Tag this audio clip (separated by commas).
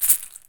Music, Rattle (instrument), Musical instrument, Percussion